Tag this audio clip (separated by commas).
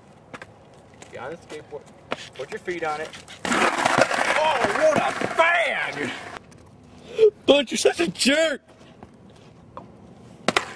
Speech